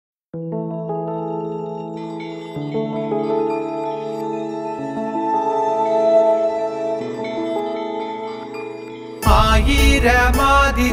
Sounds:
music
singing

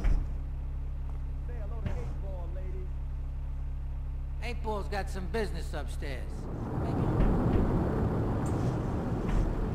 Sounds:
speech
music

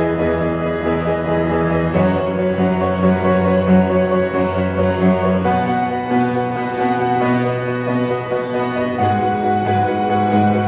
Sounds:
music
orchestra

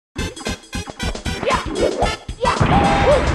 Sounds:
music

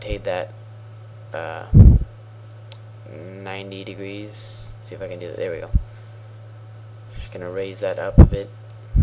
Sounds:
speech

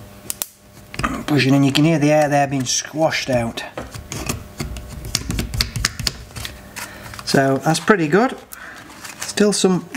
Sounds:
speech

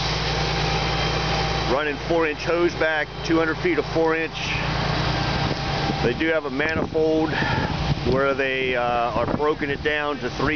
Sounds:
speech

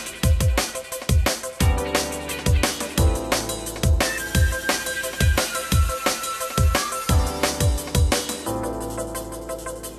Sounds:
sound effect
music

